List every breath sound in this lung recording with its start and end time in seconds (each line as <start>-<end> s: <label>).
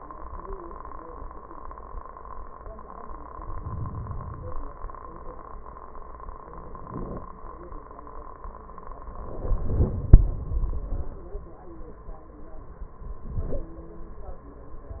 3.32-4.66 s: inhalation